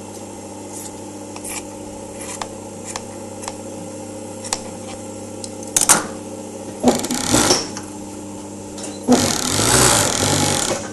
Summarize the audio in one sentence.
Scissors being used with a sewing machine in the background